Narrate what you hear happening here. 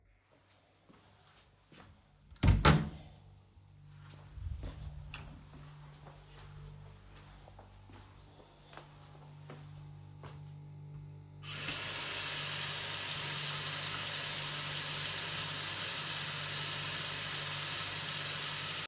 I walked to the kitchen door, opened it, then walked to the tap and turned on the water.